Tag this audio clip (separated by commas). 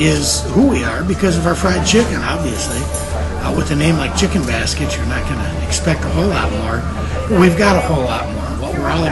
Speech